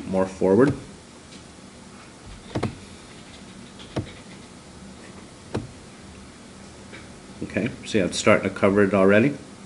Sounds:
speech

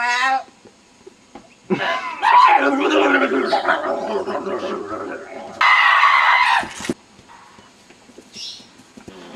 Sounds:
people screaming, screaming

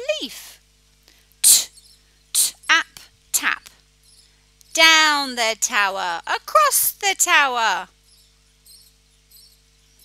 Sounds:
speech

